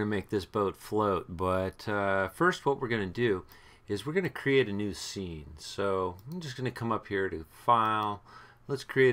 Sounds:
speech

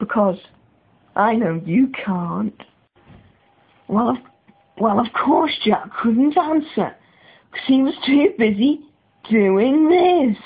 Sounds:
speech, inside a small room

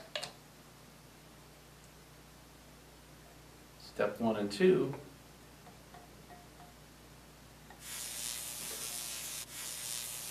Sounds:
electric razor, speech

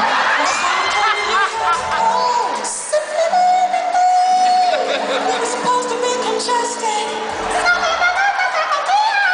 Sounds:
music, speech, inside a large room or hall, singing

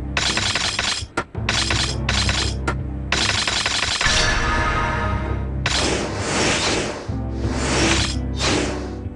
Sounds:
music

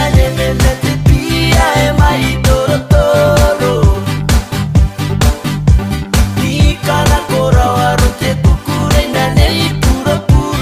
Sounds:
electronic music, music

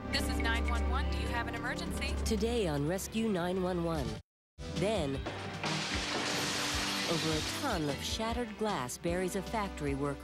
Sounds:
speech, clink, music

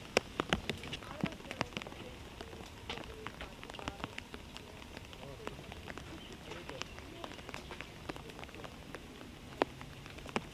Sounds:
outside, rural or natural, speech

